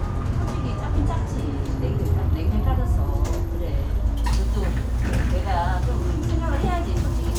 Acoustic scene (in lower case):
bus